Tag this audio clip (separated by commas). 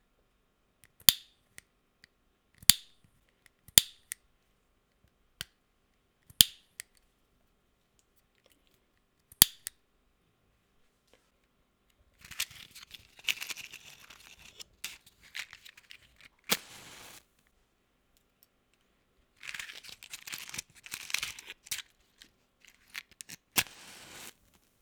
Fire